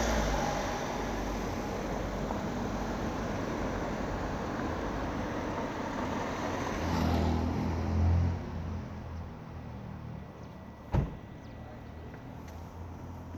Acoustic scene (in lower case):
street